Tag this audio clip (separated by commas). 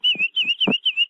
Chirp, Wild animals, Bird, Animal, bird song